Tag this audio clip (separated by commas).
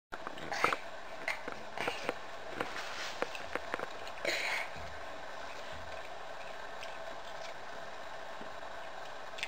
people eating apple